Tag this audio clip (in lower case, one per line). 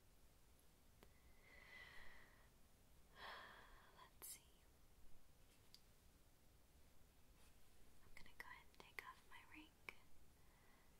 speech